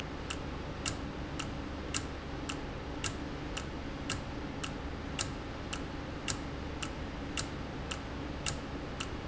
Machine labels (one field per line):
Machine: valve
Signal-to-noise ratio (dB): -6 dB